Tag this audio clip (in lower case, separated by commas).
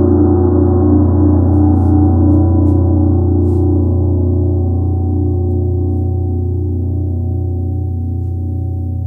playing gong